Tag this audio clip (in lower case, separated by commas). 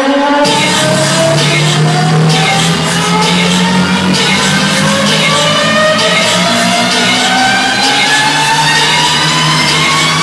music